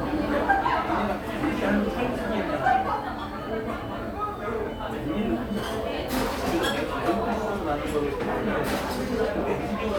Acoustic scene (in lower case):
cafe